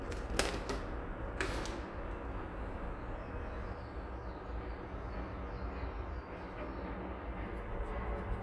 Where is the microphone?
in an elevator